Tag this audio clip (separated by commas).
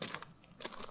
footsteps